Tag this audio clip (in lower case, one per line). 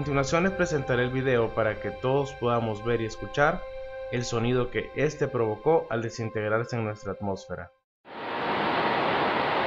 speech